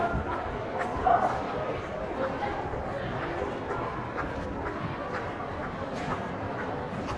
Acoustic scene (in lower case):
crowded indoor space